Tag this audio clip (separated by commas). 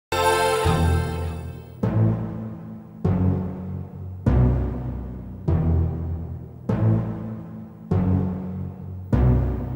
Music, Timpani